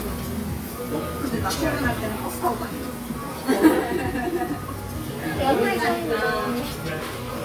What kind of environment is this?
restaurant